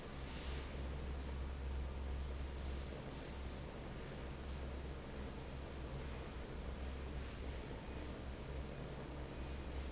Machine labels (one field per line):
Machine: fan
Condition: normal